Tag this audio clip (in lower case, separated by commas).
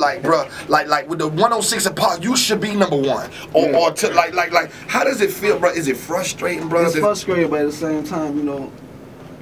speech